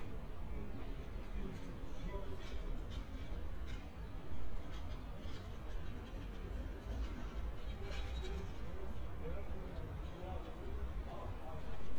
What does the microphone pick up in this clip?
background noise